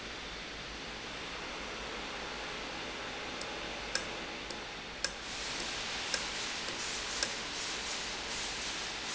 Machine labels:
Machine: valve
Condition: normal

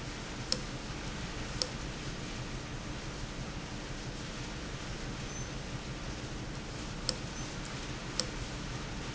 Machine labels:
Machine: valve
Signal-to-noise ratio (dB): -6 dB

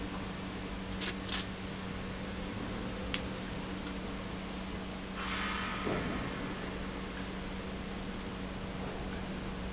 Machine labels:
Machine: pump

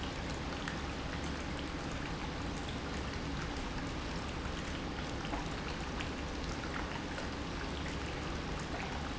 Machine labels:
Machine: pump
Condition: normal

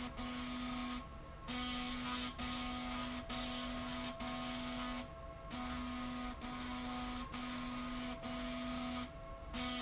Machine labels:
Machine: slide rail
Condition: abnormal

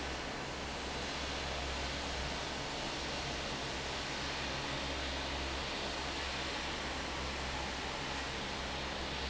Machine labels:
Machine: fan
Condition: normal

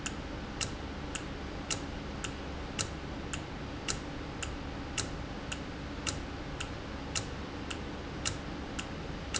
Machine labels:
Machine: valve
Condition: normal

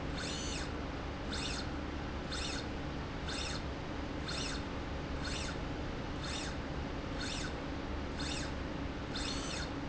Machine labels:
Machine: slide rail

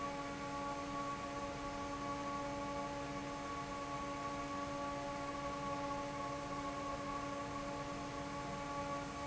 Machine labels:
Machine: fan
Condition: normal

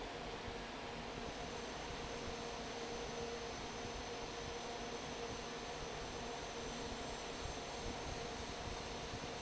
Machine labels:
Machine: fan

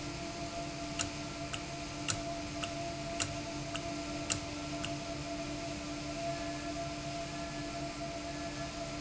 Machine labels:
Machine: valve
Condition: normal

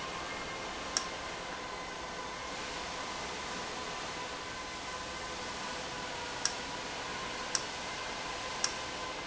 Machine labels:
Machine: valve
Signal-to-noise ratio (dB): -6 dB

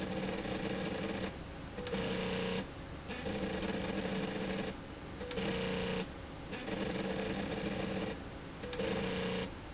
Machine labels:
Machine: slide rail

